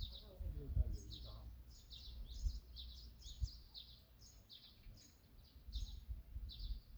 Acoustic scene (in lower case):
park